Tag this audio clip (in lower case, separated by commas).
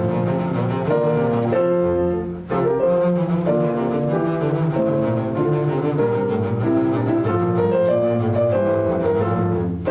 music